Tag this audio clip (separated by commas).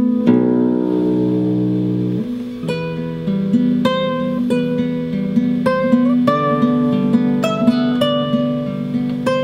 Musical instrument, Plucked string instrument, Music, Strum, Guitar